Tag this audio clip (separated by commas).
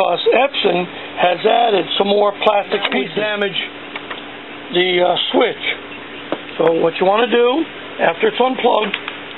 Speech, Printer